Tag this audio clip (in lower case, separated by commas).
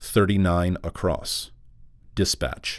human voice, man speaking, speech